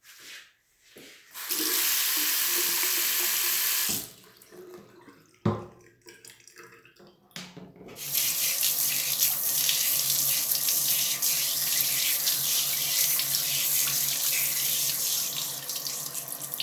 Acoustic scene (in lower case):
restroom